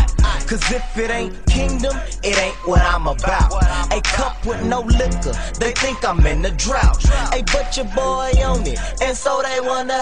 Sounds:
Music

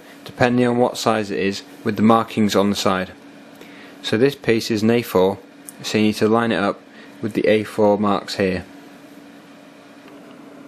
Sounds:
Speech

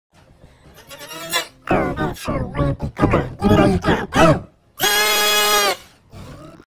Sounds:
Sheep, Speech

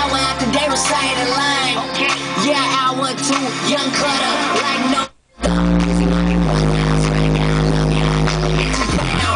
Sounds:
Sound effect

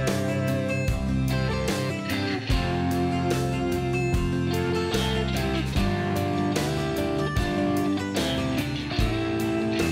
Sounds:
Music

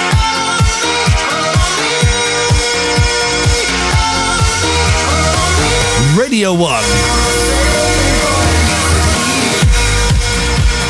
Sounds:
Electronic dance music

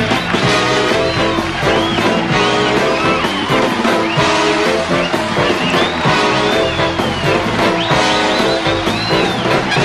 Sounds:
Music

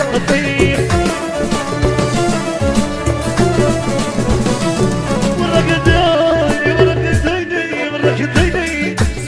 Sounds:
Music

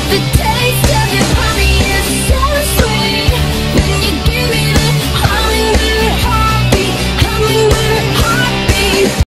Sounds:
Music

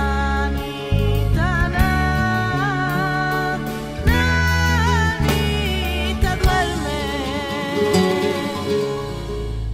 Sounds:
Music, Music of Latin America, Flamenco

